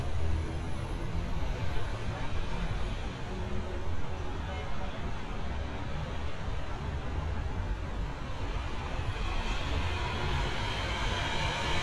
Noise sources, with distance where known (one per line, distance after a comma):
engine of unclear size, near